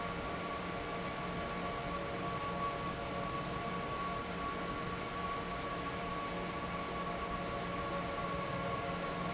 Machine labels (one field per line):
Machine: fan